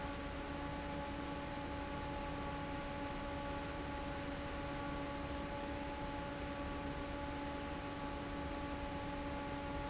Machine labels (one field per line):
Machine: fan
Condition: normal